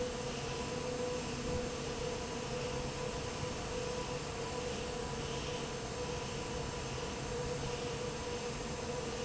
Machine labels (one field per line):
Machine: fan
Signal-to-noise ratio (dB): -6 dB